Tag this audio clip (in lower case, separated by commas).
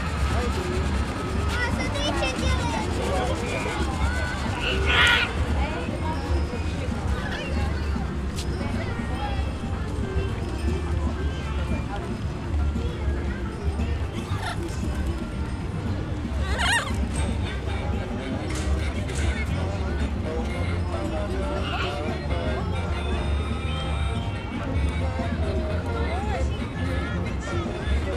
wild animals, bird, animal